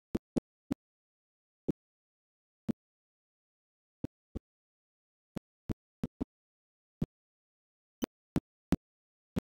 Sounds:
speech, vehicle

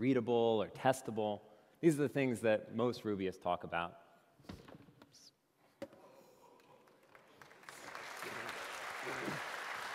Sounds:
speech

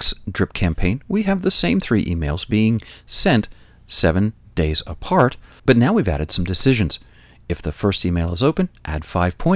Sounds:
speech

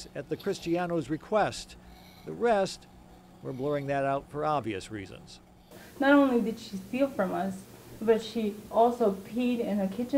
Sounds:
woman speaking, speech

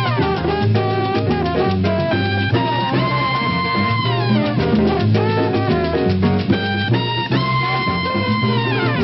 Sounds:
swing music, music

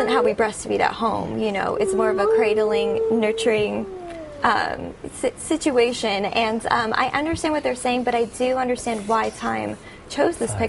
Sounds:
speech, inside a small room

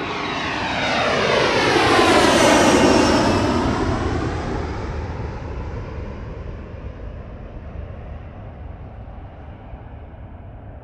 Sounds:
airplane flyby

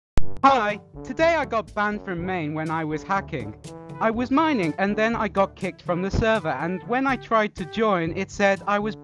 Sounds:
music, inside a small room, speech

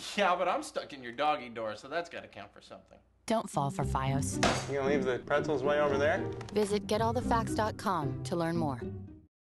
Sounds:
speech, music

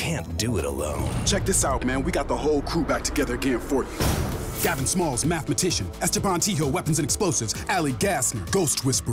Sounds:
speech, music

